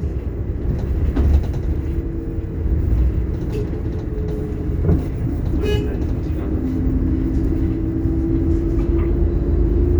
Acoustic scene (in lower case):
bus